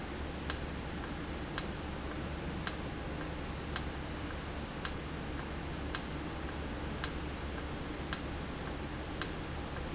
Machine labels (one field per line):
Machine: valve